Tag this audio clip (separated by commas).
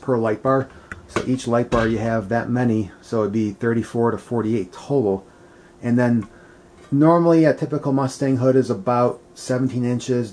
Speech